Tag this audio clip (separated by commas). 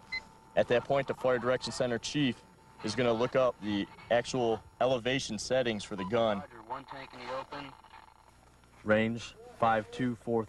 Speech, Radio